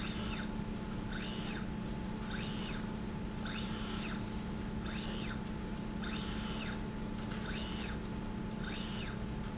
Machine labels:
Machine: slide rail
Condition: normal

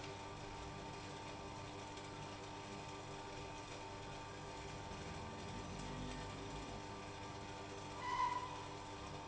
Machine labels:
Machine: pump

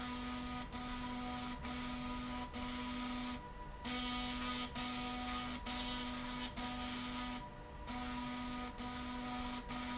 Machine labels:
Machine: slide rail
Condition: abnormal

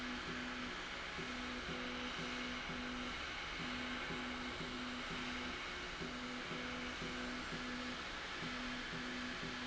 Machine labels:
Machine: slide rail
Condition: normal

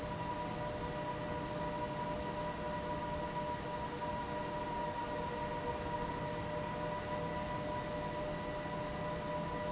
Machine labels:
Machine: fan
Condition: abnormal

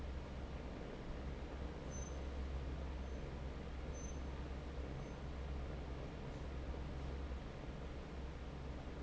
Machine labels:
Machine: fan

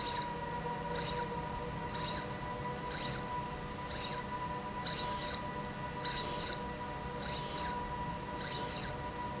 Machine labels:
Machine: slide rail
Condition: abnormal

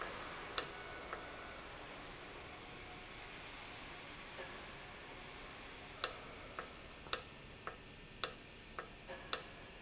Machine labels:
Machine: valve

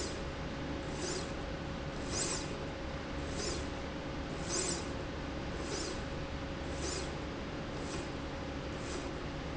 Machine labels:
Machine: slide rail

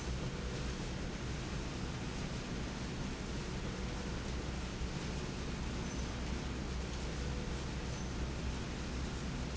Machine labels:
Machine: slide rail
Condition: normal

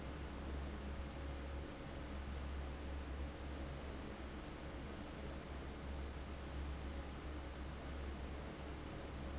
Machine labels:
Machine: fan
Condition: abnormal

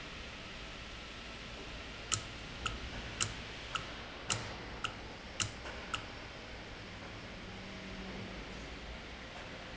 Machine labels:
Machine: valve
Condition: normal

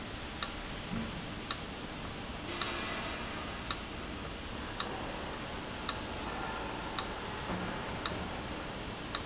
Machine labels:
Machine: valve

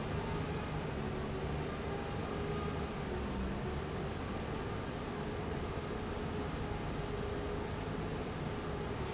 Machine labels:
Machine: fan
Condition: abnormal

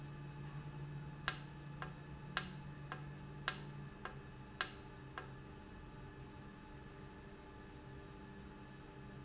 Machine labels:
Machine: valve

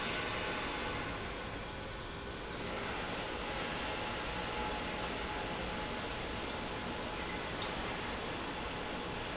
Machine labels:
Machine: pump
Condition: normal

